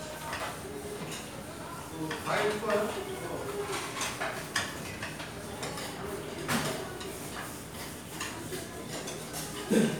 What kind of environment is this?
restaurant